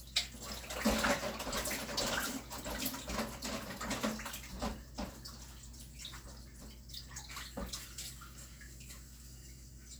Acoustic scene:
kitchen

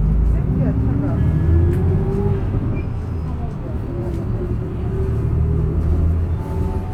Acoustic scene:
bus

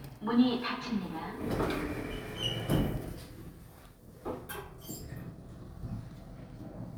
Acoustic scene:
elevator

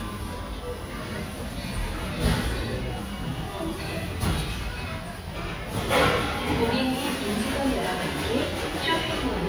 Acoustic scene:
restaurant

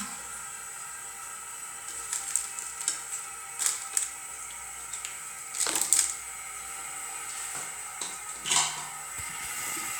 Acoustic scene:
restroom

